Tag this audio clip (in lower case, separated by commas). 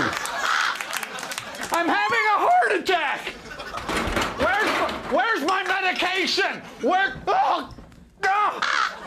speech, crow, caw